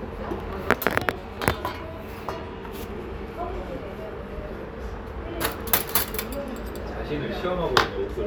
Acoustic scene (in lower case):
restaurant